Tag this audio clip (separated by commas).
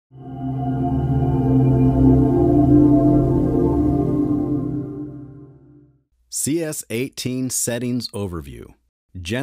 Music, Speech